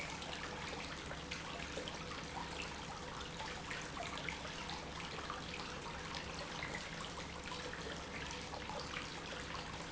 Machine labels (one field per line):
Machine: pump